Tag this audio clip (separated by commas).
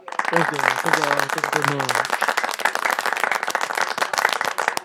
Human voice, Human group actions, Applause